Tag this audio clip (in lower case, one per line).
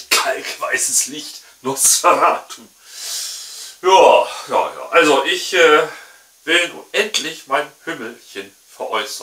speech